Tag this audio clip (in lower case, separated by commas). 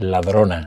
speech, man speaking, human voice